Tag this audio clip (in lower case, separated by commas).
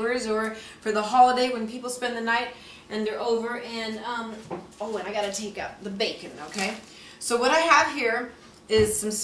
speech